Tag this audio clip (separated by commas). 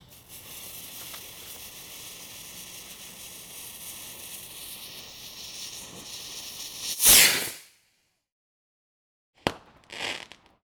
Explosion, Fireworks